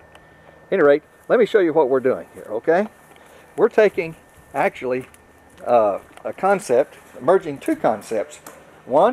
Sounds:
speech

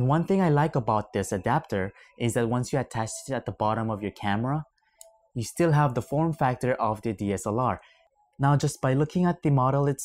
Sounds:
monologue
speech

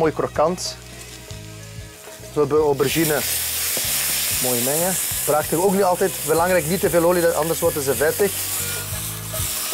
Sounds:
frying (food)
sizzle

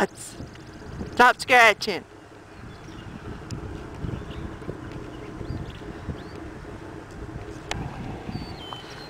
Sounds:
ass braying

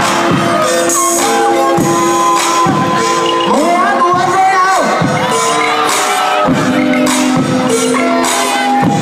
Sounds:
speech
music

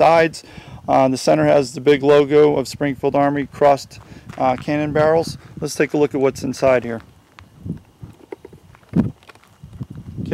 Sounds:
speech

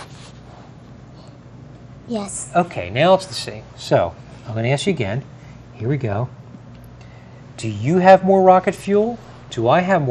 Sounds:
speech

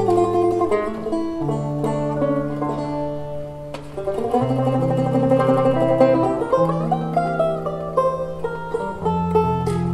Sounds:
music
blues
tender music

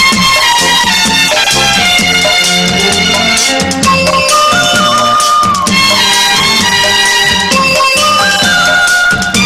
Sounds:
theme music
music

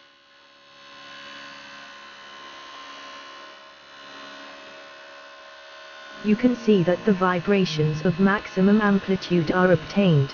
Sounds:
speech
music

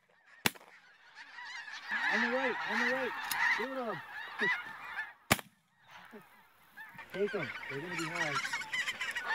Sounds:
speech

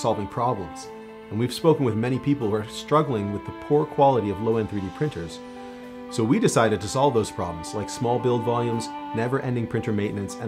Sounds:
speech
music

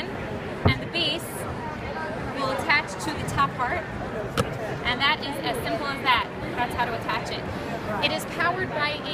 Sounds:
speech

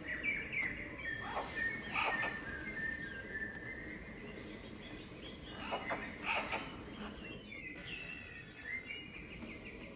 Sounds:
magpie calling

